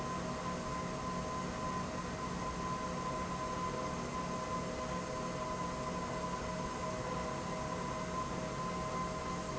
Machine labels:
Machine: pump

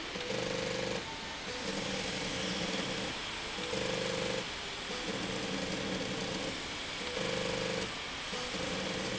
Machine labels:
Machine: slide rail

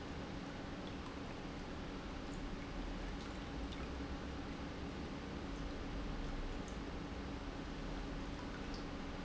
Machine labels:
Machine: pump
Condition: normal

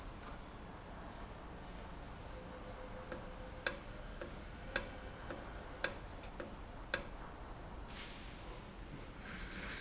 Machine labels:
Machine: valve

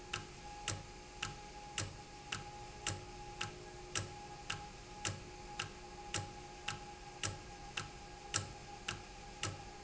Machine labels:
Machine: valve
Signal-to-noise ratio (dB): 6 dB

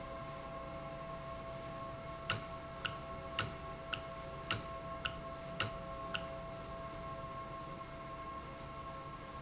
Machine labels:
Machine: valve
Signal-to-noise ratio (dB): 0 dB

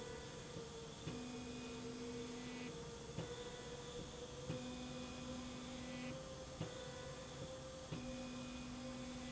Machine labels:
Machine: slide rail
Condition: normal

